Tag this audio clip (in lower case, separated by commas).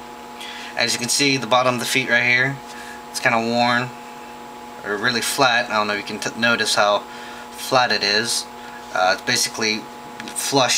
speech